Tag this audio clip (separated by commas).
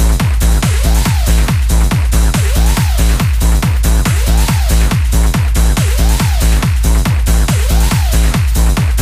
Trance music, Music